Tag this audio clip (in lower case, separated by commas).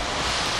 water vehicle, ocean, vehicle, water